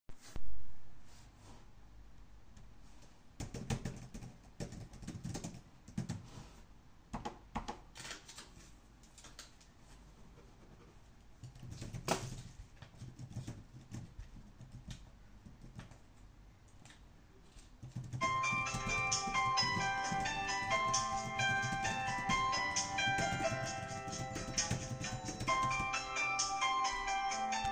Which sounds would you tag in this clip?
keyboard typing, phone ringing